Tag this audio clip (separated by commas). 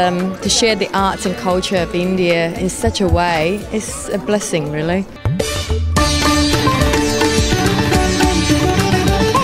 Classical music, Sitar, Speech, Carnatic music, Music